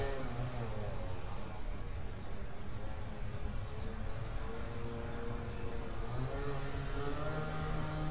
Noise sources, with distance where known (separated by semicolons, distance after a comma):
small-sounding engine; unidentified powered saw